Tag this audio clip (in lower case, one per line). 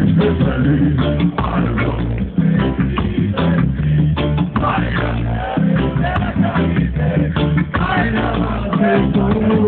music